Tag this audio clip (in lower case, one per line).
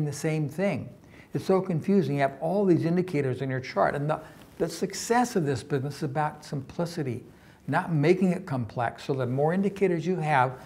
speech